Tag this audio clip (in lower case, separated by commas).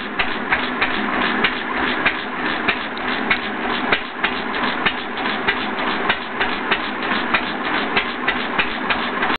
engine, idling, medium engine (mid frequency)